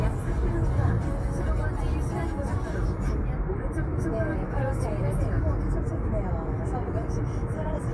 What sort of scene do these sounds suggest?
car